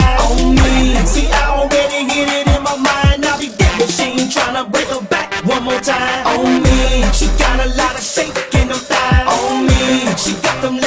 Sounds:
music, hip hop music

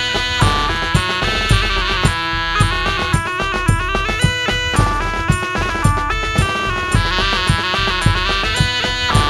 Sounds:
music, bagpipes

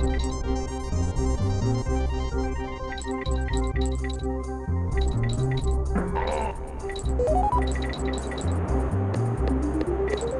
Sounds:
music

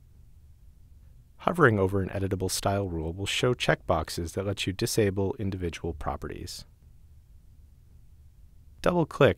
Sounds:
speech

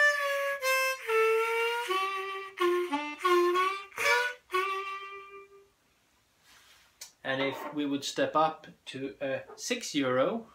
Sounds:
speech, music

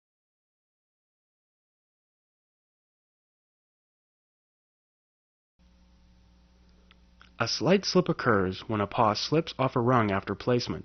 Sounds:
silence, speech

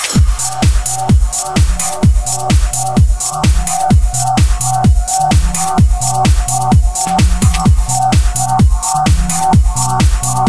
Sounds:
music

